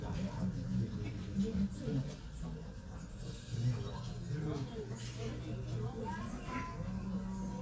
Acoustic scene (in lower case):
crowded indoor space